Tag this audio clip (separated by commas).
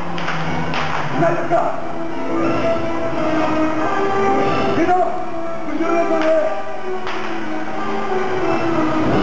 Speech, Music